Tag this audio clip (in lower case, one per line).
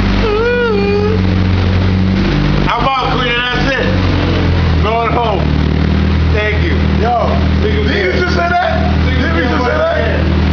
speech